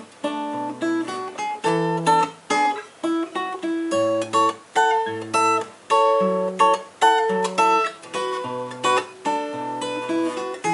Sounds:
Acoustic guitar, Plucked string instrument, Guitar, Musical instrument, Music

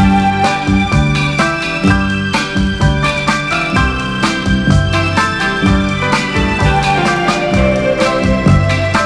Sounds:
Music

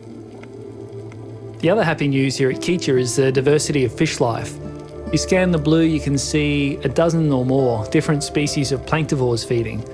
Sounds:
Music, Speech

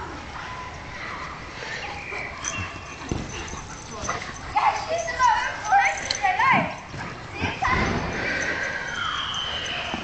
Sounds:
Dog, pets, Animal, Speech

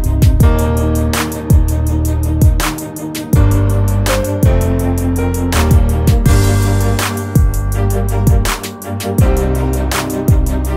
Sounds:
Music

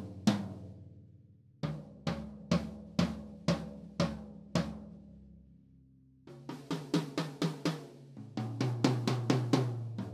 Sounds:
Musical instrument, Drum, Drum kit, Music

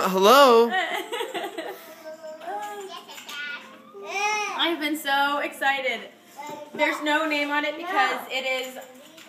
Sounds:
Speech, kid speaking

